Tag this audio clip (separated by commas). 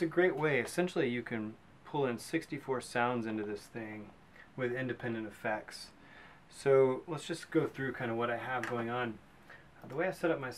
Speech